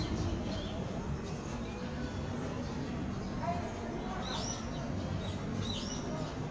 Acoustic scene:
park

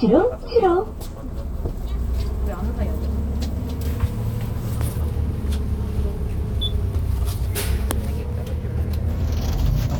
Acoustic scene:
bus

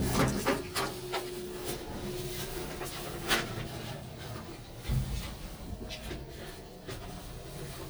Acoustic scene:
elevator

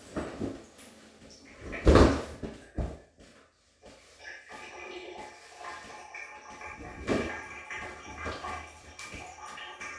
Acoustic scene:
restroom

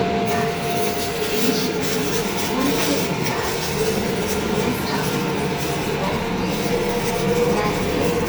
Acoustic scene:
subway train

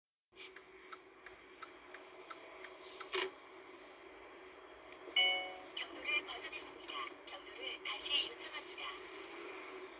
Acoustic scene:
car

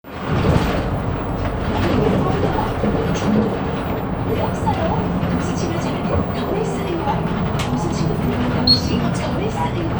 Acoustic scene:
bus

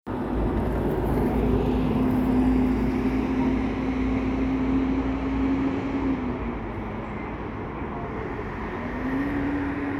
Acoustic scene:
street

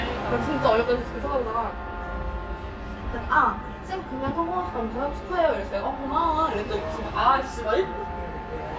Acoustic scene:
restaurant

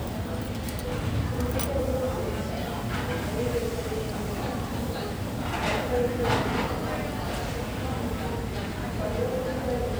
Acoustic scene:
cafe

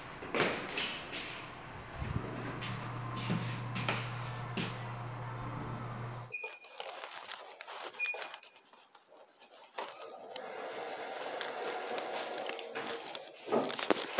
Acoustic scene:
elevator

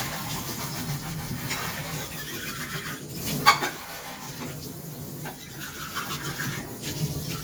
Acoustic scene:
kitchen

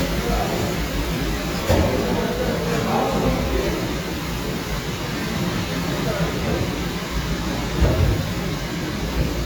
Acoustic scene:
cafe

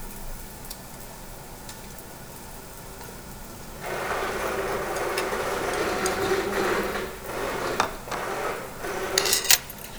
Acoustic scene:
restaurant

